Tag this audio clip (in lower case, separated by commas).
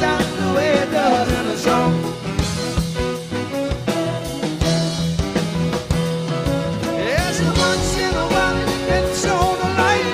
music, singing, rock and roll